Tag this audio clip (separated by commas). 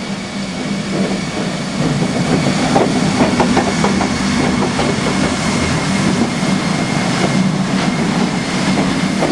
Train wheels squealing, Rail transport, Railroad car, Train, Vehicle